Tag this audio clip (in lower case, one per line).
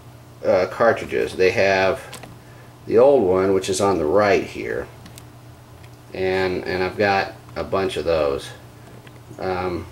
speech